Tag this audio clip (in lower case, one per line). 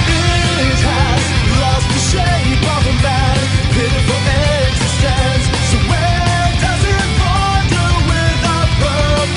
music